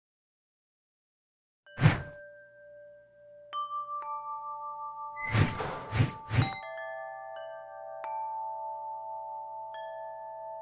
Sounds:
Music, Glockenspiel

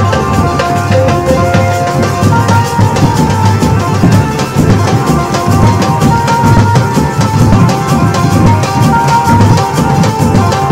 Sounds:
Music

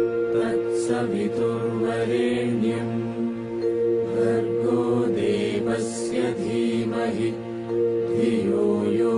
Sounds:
Music, Mantra

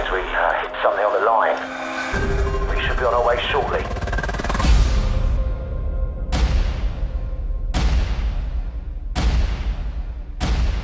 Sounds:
Speech, Music

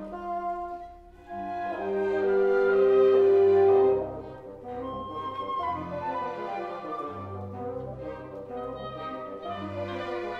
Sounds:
playing bassoon

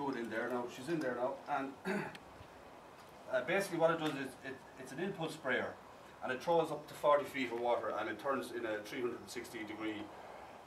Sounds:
Speech

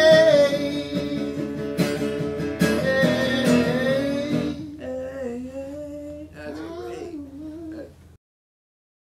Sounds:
Music

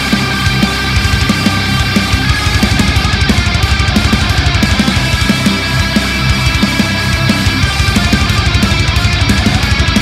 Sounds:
playing electric guitar

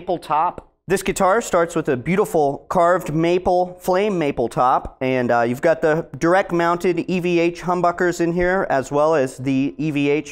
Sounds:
Speech

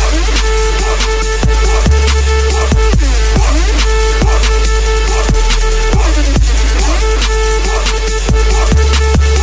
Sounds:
Music, Techno, Electronic music

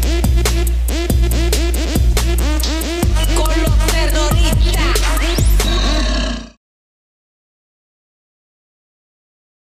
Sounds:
Music

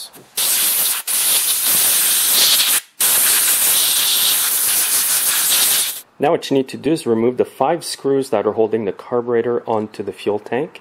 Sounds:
inside a large room or hall, Speech

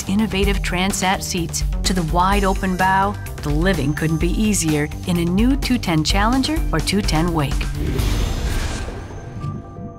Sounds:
Music, Speech

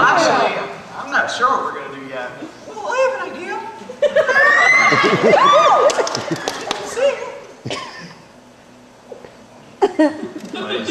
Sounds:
Speech

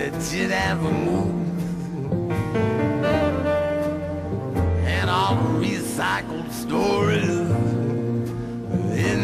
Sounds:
Music

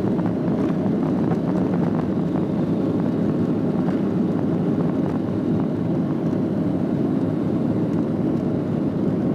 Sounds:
Fixed-wing aircraft, Aircraft

